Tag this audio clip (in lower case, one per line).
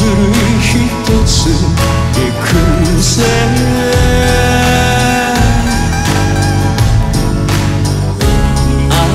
music